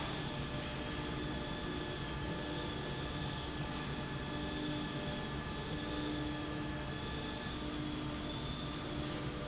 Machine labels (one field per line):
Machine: slide rail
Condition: normal